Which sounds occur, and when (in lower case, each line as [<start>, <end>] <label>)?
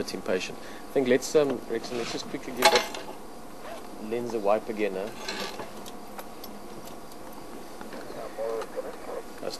[0.00, 9.55] mechanisms
[0.03, 0.49] male speech
[0.54, 0.82] breathing
[0.92, 2.79] male speech
[1.42, 1.55] generic impact sounds
[1.78, 2.21] surface contact
[2.59, 3.01] generic impact sounds
[3.21, 4.55] cricket
[3.60, 3.79] generic impact sounds
[4.07, 5.07] male speech
[4.28, 4.38] generic impact sounds
[5.03, 5.64] generic impact sounds
[5.79, 5.88] generic impact sounds
[5.92, 6.05] cricket
[6.11, 6.21] generic impact sounds
[6.24, 6.33] cricket
[6.39, 6.53] generic impact sounds
[6.52, 7.09] cricket
[6.83, 6.93] generic impact sounds
[7.05, 7.14] generic impact sounds
[7.37, 7.62] cricket
[8.02, 8.22] bird call
[8.02, 9.18] male speech
[8.55, 8.64] generic impact sounds
[8.89, 9.00] generic impact sounds
[9.40, 9.55] male speech